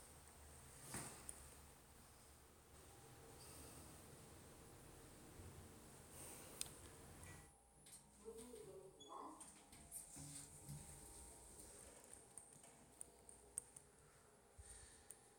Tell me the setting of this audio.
elevator